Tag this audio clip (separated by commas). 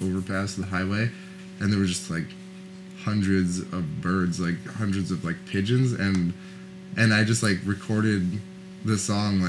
Speech